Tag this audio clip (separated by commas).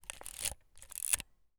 Mechanisms, Camera